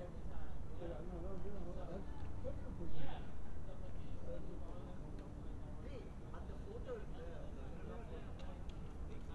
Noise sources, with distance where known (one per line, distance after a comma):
person or small group talking